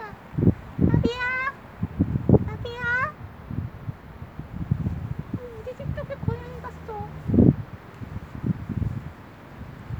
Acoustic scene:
residential area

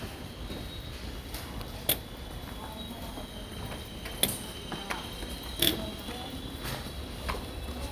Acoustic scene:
subway station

